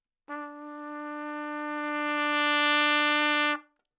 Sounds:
trumpet, musical instrument, music, brass instrument

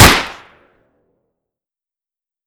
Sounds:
gunshot, explosion

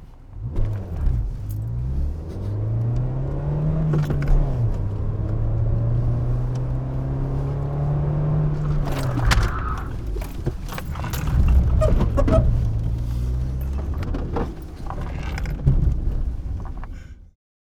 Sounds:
engine, squeak, vroom, vehicle

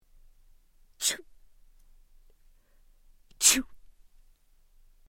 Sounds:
respiratory sounds, sneeze

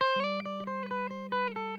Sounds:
guitar, musical instrument, electric guitar, plucked string instrument, music

